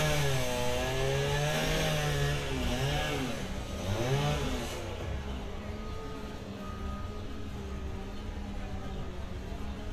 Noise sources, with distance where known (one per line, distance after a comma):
chainsaw, near